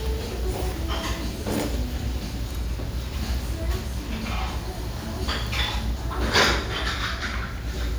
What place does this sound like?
restaurant